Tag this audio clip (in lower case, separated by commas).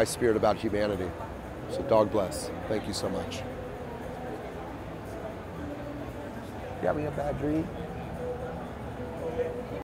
speech